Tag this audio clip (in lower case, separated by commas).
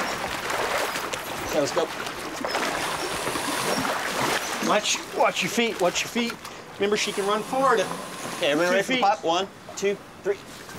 water, speech